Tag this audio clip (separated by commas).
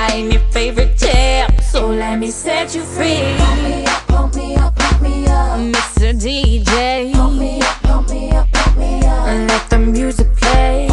Music